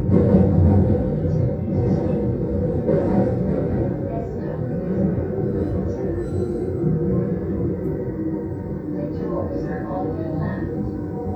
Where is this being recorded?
on a subway train